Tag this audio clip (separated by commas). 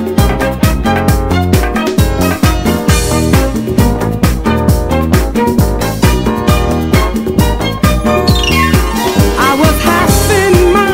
Music